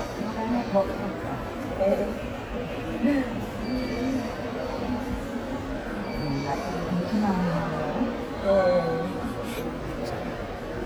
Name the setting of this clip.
subway station